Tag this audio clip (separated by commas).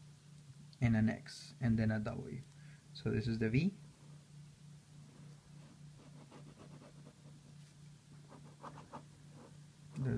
Speech